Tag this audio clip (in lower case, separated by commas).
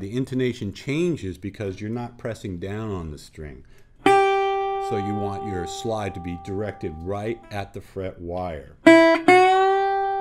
guitar, music, plucked string instrument, speech, musical instrument, acoustic guitar